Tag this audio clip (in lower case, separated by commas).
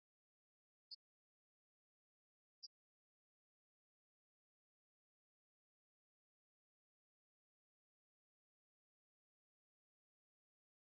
music